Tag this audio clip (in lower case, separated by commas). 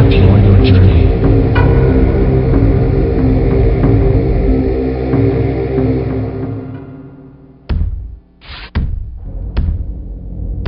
speech, music